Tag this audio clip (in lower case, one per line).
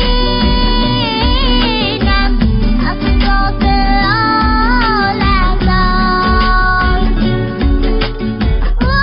child singing